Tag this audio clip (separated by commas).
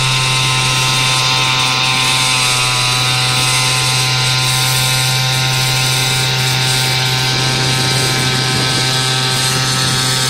speedboat